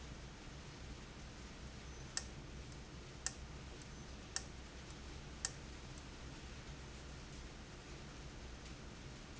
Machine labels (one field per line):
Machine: valve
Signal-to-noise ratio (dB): 6 dB